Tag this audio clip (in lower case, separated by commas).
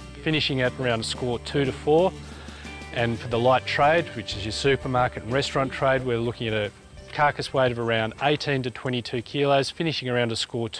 speech, music